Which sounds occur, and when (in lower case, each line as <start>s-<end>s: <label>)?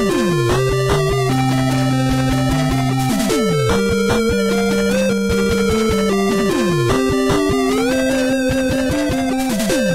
0.0s-9.9s: music